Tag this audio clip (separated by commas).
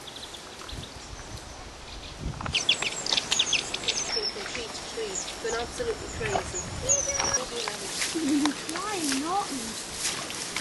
Speech